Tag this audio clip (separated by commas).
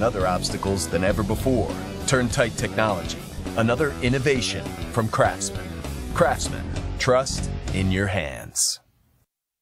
Music, Speech